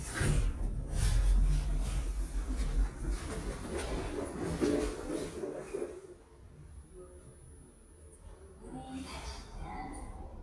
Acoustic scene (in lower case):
elevator